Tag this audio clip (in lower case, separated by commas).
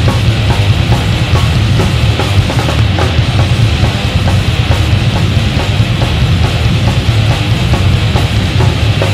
music